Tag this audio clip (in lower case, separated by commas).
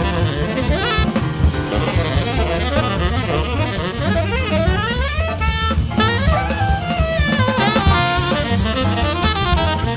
playing saxophone